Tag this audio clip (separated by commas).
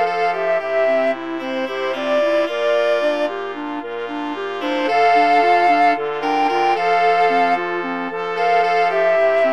Brass instrument, Clarinet